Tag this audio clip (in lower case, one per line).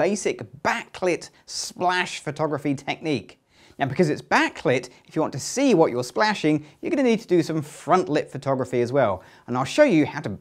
speech